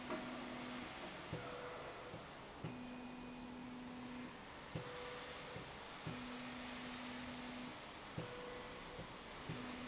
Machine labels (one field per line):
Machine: slide rail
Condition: normal